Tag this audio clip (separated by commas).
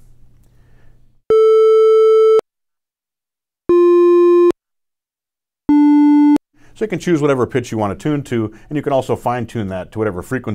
Music, Speech